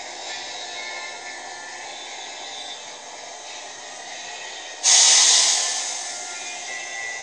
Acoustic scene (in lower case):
subway train